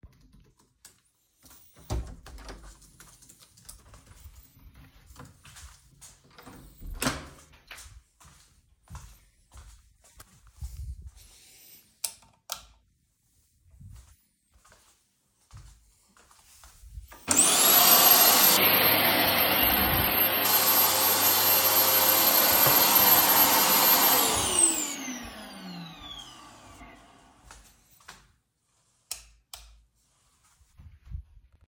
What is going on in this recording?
I opened the door to my room, turned on the light switch, used the vacuum cleaner, turned off the light